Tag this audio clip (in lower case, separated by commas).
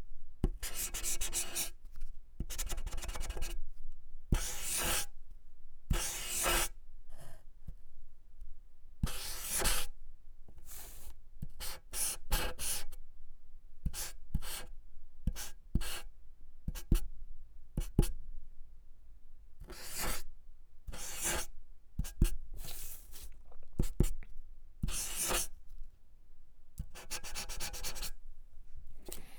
domestic sounds, writing